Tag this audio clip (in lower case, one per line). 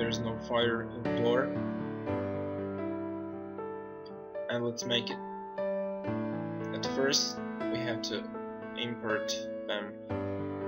speech
music